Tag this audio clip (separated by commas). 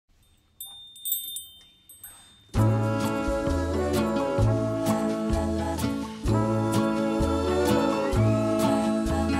Music, outside, urban or man-made